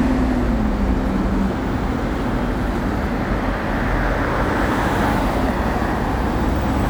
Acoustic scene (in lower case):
street